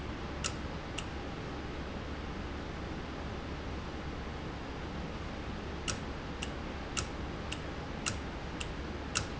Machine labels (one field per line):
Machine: valve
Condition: normal